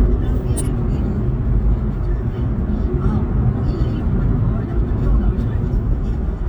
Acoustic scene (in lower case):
car